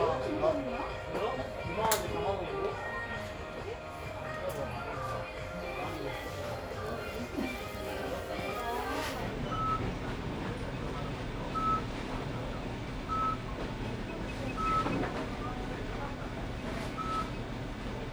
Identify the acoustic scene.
crowded indoor space